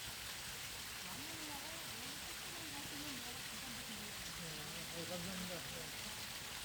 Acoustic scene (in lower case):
park